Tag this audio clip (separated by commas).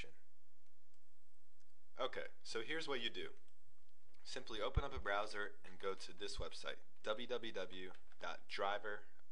Speech